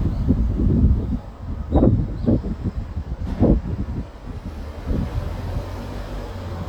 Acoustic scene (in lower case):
residential area